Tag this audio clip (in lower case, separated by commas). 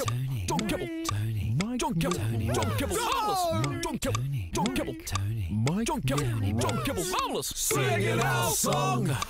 music, speech